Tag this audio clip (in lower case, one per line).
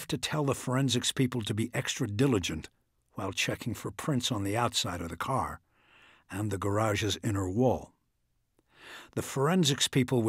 speech